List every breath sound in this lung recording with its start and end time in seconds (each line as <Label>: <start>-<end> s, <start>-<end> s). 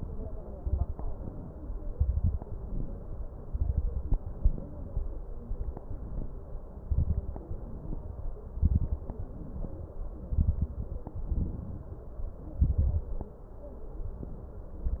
Inhalation: 0.97-1.92 s, 2.45-3.40 s, 4.18-4.96 s, 5.47-6.55 s, 7.49-8.49 s, 9.20-10.20 s, 11.19-12.16 s, 13.85-14.82 s
Exhalation: 0.53-0.93 s, 1.92-2.41 s, 3.44-4.16 s, 6.80-7.43 s, 8.55-9.18 s, 10.26-10.75 s, 12.62-13.11 s
Crackles: 0.53-0.93 s, 1.92-2.41 s, 3.44-4.16 s, 6.80-7.43 s, 8.55-9.18 s, 10.26-10.75 s, 12.62-13.11 s